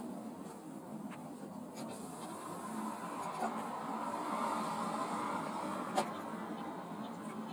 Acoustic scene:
car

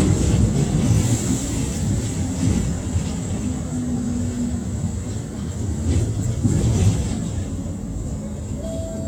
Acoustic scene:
bus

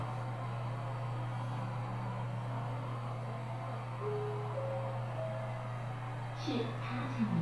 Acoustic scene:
elevator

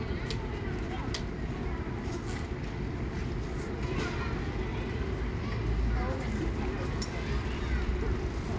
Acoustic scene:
residential area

